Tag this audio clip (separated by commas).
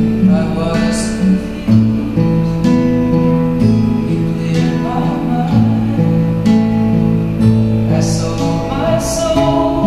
Music, Guitar, Acoustic guitar, Plucked string instrument, Musical instrument